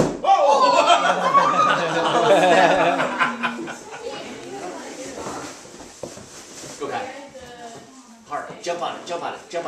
Sound of burst, group of people laughing followed by a man speaking